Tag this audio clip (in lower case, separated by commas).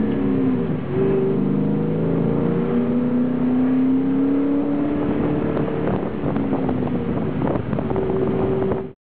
car, vehicle, vroom, medium engine (mid frequency)